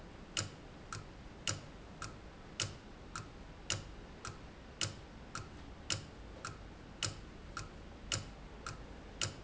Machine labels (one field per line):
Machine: valve